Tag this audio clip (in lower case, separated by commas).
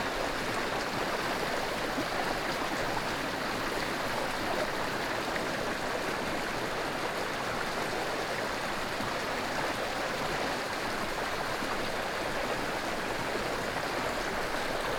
stream, water